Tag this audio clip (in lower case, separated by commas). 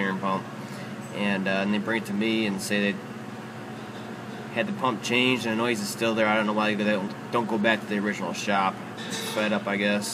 speech